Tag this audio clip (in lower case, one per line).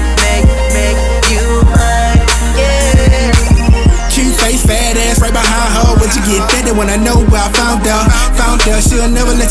music
rock and roll
punk rock
soundtrack music